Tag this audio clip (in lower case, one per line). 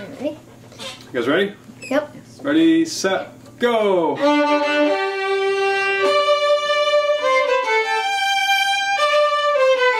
music
musical instrument
speech
violin